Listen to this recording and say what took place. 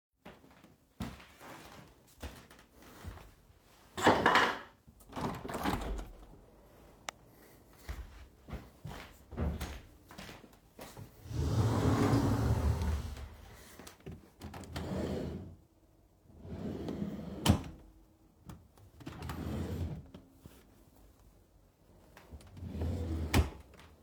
Phone in Hand I went to the window openend it